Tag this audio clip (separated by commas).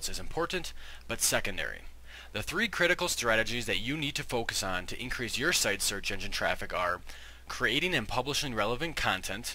Speech